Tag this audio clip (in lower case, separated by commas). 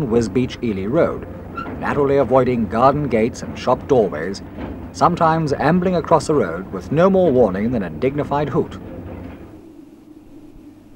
speech